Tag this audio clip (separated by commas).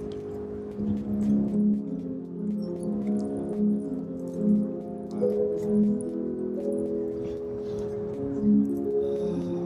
New-age music, Music